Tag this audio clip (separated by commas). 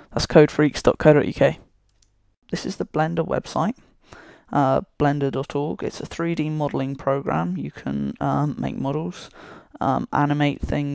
Speech